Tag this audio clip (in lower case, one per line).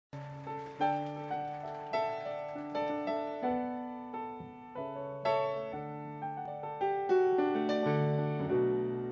piano
music